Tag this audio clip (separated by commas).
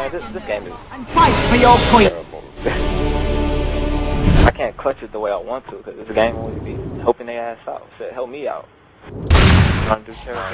Speech, Music